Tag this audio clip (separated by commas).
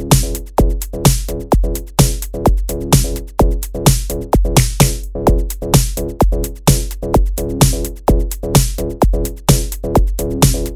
Techno, Music